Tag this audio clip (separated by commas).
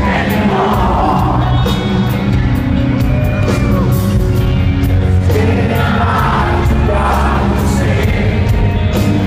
Music